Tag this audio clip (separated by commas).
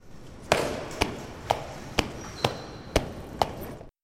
footsteps, Squeak